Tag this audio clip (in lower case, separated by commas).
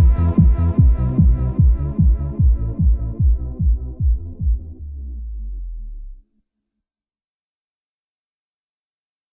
silence, music